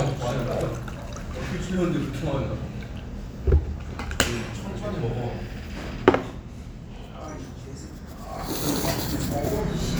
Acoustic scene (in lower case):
restaurant